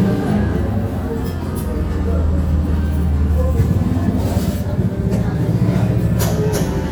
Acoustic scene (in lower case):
cafe